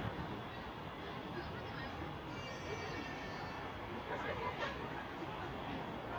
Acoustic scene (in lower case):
residential area